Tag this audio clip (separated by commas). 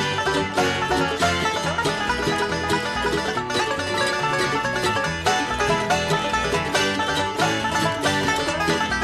Music, Bluegrass